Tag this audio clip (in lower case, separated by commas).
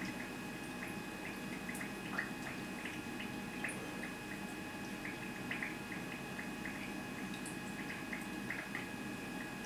outside, rural or natural